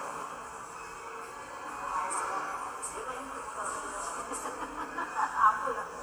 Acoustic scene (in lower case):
subway station